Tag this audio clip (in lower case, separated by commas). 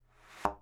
thump